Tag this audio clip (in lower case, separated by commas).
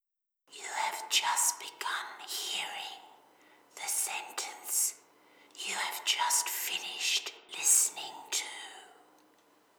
whispering, human voice